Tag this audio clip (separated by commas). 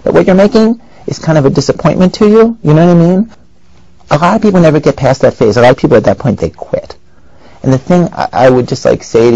Speech